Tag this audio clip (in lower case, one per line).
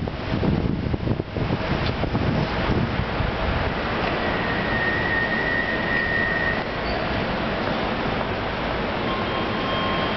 rail transport
vehicle
train